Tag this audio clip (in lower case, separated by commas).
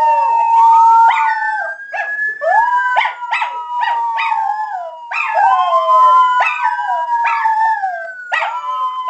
animal, dog, howl, domestic animals